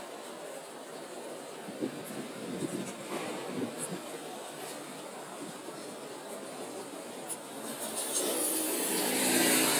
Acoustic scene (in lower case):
residential area